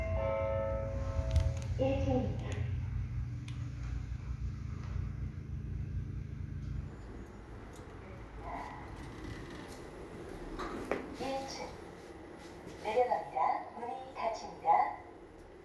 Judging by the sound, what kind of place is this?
elevator